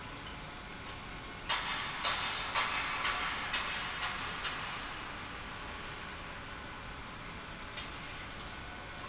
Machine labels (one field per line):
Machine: pump